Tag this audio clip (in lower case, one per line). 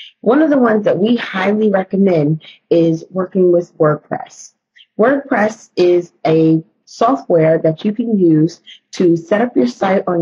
speech